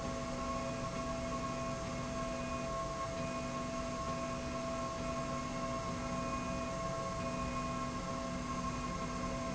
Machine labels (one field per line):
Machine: slide rail